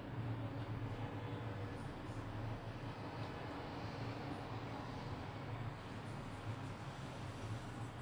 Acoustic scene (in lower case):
residential area